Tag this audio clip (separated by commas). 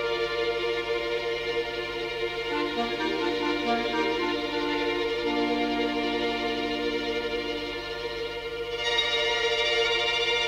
Violin, Musical instrument, Music